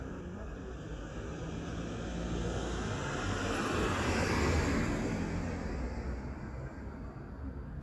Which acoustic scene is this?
residential area